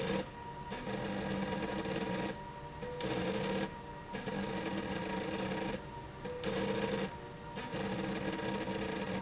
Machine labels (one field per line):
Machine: slide rail